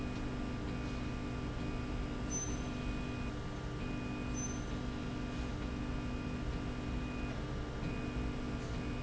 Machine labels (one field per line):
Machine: slide rail